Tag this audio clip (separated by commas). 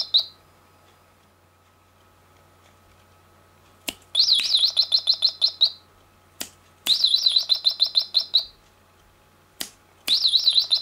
tweeting